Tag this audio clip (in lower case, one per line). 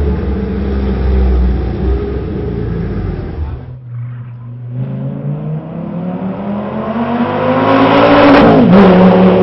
car
motor vehicle (road)
outside, urban or man-made
race car
vehicle